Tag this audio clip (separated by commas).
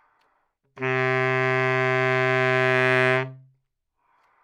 Wind instrument, Musical instrument, Music